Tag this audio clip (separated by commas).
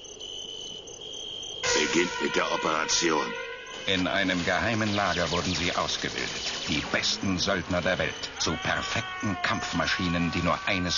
Speech